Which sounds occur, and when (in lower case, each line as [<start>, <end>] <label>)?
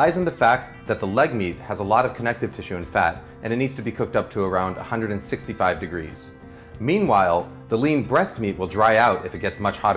[0.00, 0.61] man speaking
[0.00, 9.95] music
[0.81, 1.48] man speaking
[1.65, 3.17] man speaking
[3.15, 3.38] breathing
[3.41, 6.37] man speaking
[6.39, 6.71] breathing
[6.75, 7.47] man speaking
[7.67, 9.95] man speaking